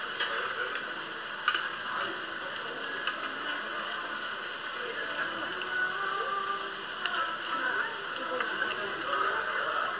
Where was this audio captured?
in a restaurant